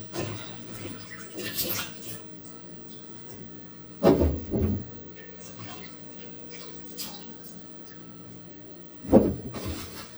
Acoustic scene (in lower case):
kitchen